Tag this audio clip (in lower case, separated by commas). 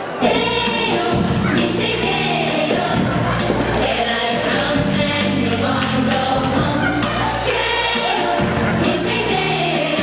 music